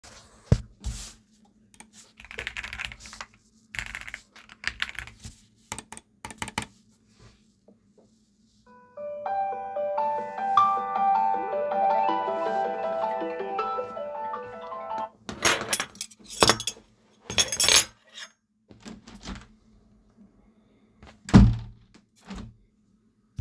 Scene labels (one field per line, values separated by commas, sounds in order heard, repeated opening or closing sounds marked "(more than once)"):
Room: office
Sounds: keyboard typing, phone ringing, cutlery and dishes, window (more than once)